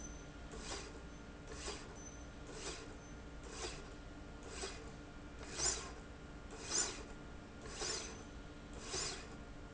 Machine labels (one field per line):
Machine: slide rail